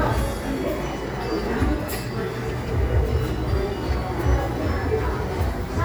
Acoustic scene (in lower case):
crowded indoor space